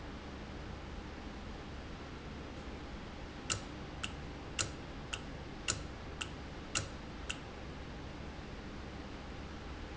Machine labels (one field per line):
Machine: valve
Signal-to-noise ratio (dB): 0 dB